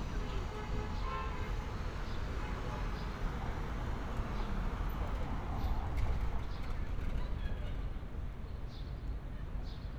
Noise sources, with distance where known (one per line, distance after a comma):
car horn, far